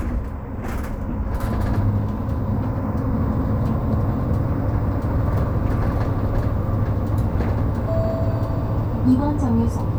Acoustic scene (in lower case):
bus